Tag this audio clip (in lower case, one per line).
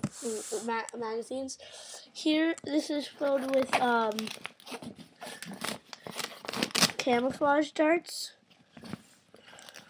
kid speaking